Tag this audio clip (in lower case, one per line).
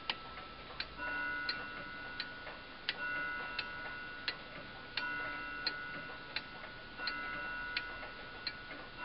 tick-tock